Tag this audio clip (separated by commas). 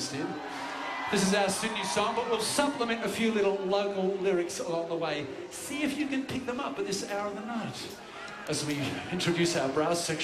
Speech, Music